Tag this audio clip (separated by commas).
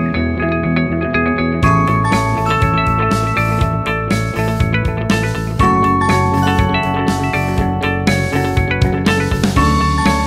Music